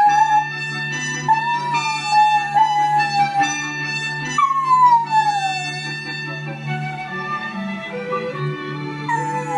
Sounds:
Bow-wow, Howl, pets, Animal, Dog, Music

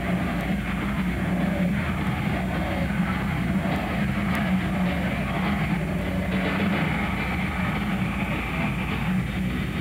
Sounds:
Music

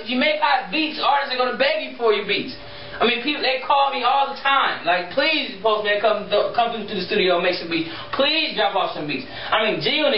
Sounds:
Speech

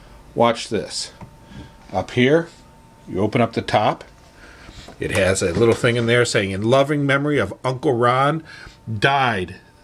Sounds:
Speech

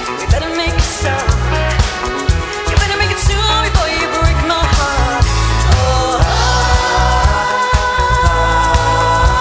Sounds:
Music of Asia, Music, Singing

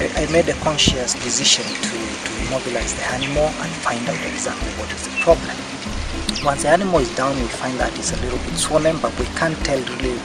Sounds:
Music, Speech

